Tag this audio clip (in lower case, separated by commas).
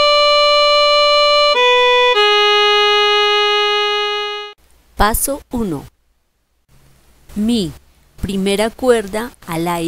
musical instrument, music, violin, speech